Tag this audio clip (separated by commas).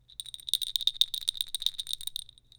Bell